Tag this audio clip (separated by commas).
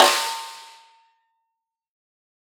Snare drum, Music, Musical instrument, Drum, Percussion